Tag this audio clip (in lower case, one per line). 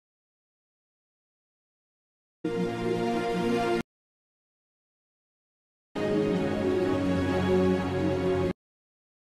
music